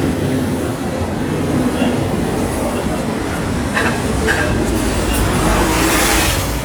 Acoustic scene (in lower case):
street